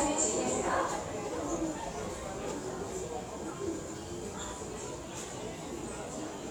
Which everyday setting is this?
subway station